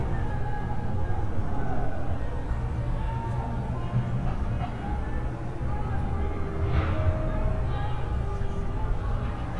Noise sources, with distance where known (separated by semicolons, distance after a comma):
unidentified human voice